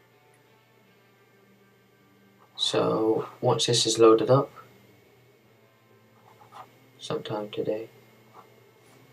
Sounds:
Speech

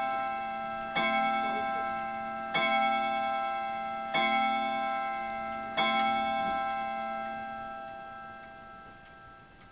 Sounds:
Clock, inside a small room

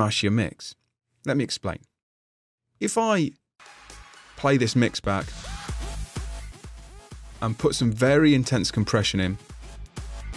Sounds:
Music, Speech, Electronic dance music

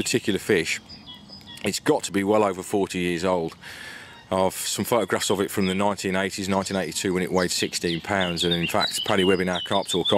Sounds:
Speech, Animal

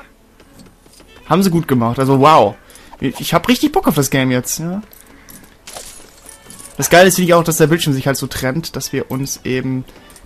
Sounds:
Speech, Music

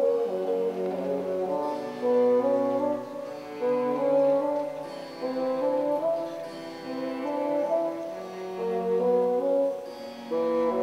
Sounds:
playing bassoon

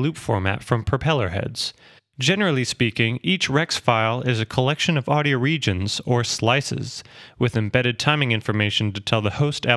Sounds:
Speech

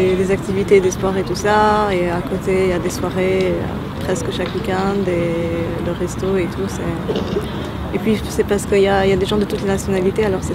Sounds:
Speech

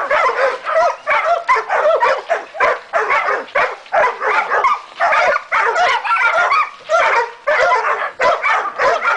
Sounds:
Bark

